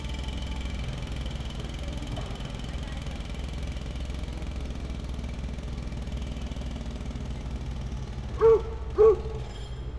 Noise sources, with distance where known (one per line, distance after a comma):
jackhammer, near
dog barking or whining, near